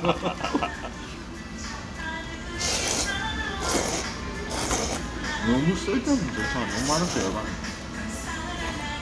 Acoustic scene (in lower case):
restaurant